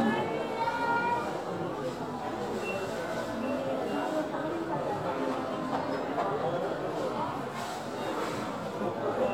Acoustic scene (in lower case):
crowded indoor space